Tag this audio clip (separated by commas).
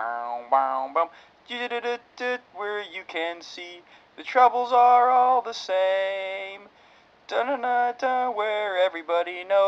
Male singing